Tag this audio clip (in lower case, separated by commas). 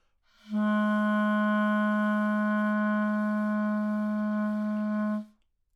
wind instrument, music, musical instrument